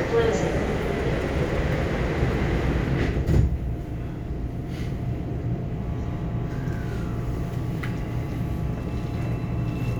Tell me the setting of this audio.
subway train